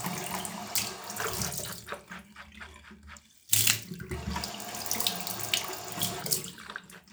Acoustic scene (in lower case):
restroom